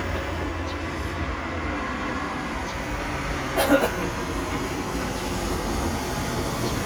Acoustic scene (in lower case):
street